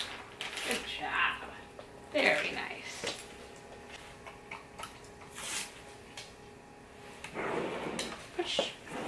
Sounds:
opening or closing drawers

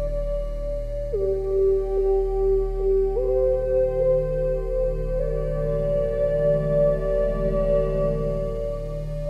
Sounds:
Music, Synthesizer

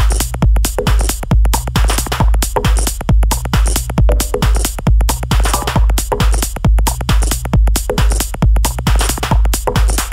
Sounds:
Music

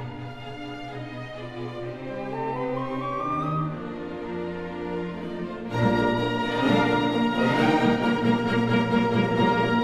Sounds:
Musical instrument, Music

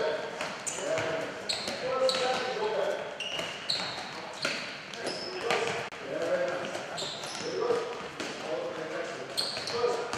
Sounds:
Speech

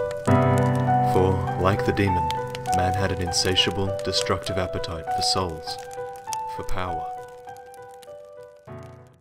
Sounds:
Speech, Music

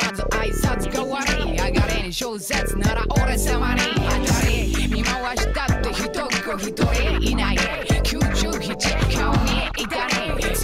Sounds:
Music, Pop music

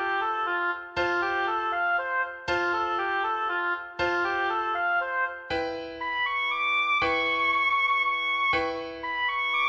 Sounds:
playing oboe

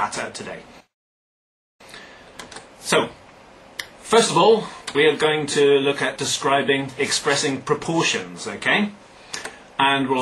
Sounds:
Speech

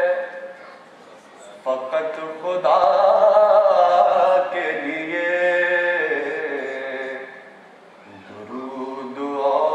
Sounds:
Singing

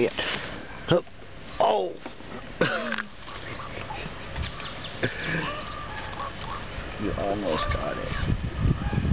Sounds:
Animal, Speech

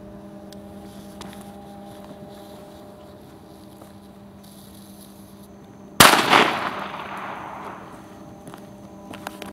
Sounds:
Firecracker

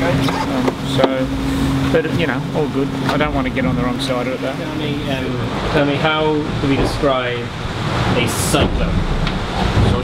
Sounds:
Speech

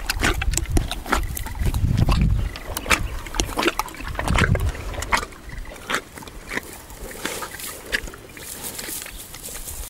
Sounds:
Animal

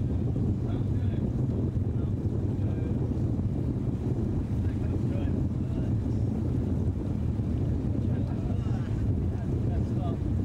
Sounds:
Stream, Waterfall, Speech, Gurgling

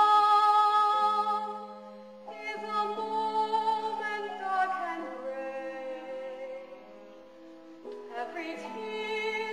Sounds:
Opera, Music

